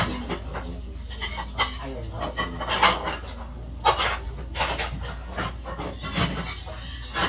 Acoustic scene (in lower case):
restaurant